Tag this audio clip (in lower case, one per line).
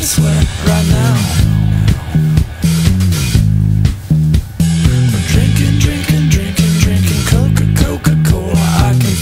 music